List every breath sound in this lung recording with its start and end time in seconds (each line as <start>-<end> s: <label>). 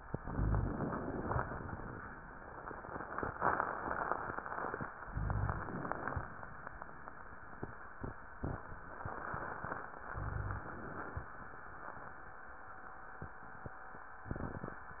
0.13-1.29 s: inhalation
0.21-0.76 s: rhonchi
5.12-5.67 s: rhonchi
5.12-6.28 s: inhalation
10.13-10.68 s: rhonchi
10.15-11.31 s: inhalation